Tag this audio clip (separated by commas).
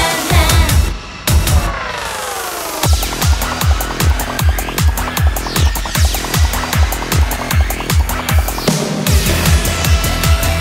Music, Music of Asia